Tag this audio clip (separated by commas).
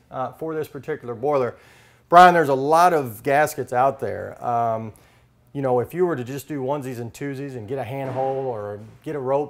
Speech